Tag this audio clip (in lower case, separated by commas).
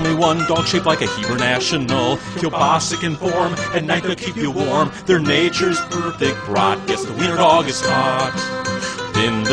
music